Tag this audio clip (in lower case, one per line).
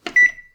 home sounds
microwave oven